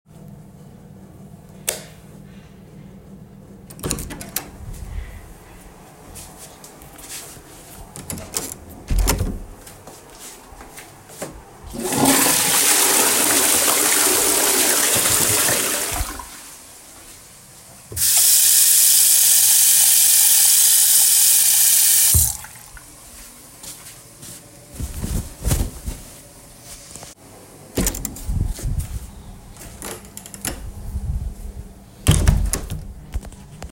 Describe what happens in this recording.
I turned on the bathroom's light, opened the door and then closed it, flushed the toilet, washed my hands, dried them, and finally opened the door and closed it again.